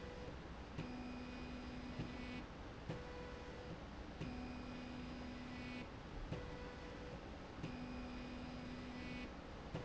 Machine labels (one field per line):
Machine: slide rail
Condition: normal